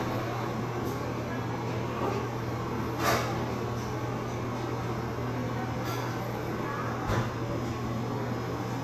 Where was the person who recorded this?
in a cafe